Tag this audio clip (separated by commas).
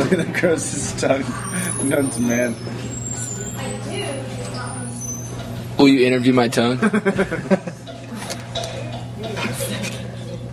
Speech